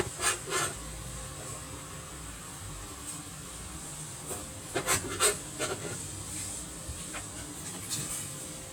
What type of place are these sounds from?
kitchen